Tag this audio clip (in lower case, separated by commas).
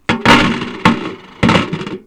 domestic sounds, coin (dropping)